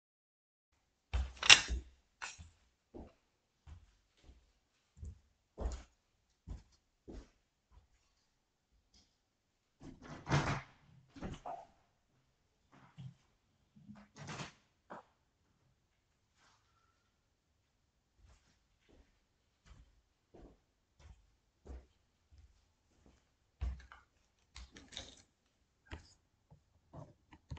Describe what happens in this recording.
I walked across the living room (on crutches) and opened a window and then walked across the living room again.